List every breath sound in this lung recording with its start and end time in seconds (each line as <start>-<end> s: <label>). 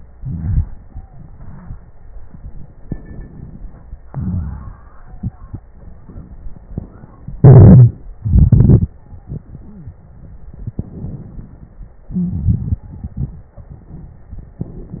0.13-0.63 s: wheeze
0.13-2.71 s: exhalation
2.80-4.08 s: crackles
2.82-4.10 s: inhalation
4.07-4.99 s: exhalation
4.10-4.99 s: crackles
7.37-7.93 s: wheeze
8.20-8.91 s: crackles
8.85-9.47 s: stridor
9.44-10.03 s: wheeze
10.57-12.07 s: inhalation
10.57-12.07 s: crackles
12.07-13.50 s: exhalation
12.09-12.81 s: wheeze
13.58-14.61 s: inhalation
13.58-14.61 s: crackles
14.62-15.00 s: exhalation
14.62-15.00 s: crackles